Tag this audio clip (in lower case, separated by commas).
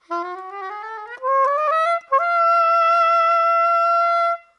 wind instrument, music, musical instrument